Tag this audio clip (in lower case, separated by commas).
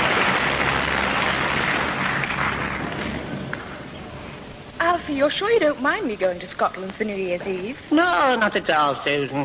radio, speech